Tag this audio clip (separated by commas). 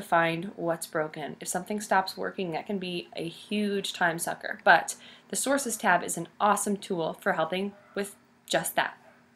Speech